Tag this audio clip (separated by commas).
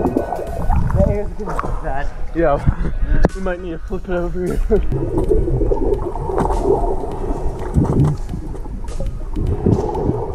underwater bubbling